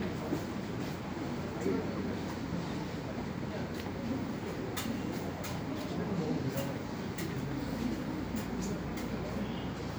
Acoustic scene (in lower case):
subway station